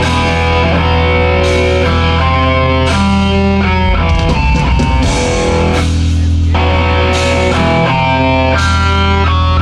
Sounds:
Music

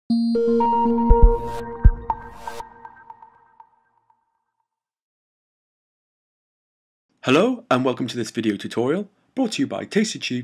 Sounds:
Synthesizer

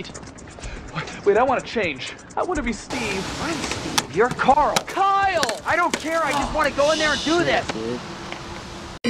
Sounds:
Music, Speech

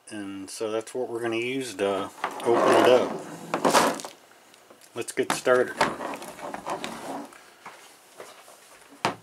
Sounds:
Speech

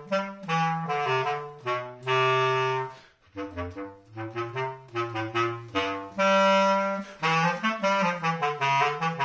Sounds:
playing clarinet

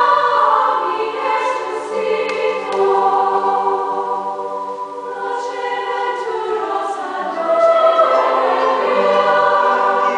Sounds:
Lullaby, Music

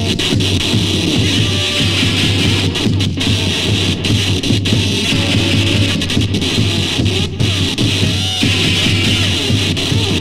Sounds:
Music

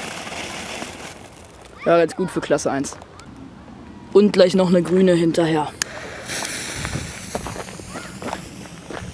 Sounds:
Speech

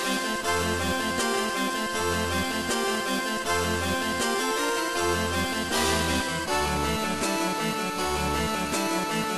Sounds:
Music

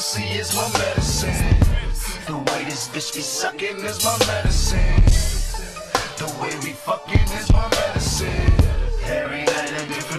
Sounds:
Music, Hip hop music

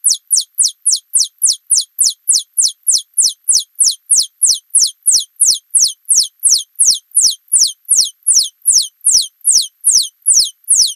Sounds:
mouse pattering

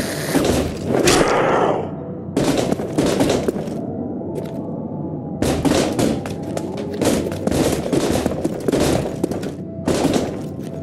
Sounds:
outside, urban or man-made

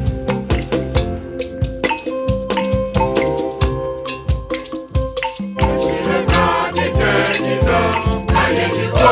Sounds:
Male singing, Female singing, Choir, Music

